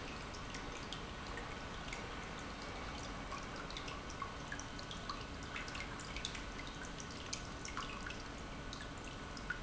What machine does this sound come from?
pump